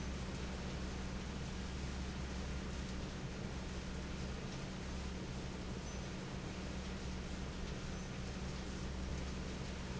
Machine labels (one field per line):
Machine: fan